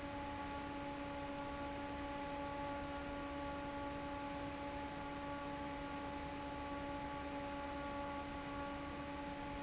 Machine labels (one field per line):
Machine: fan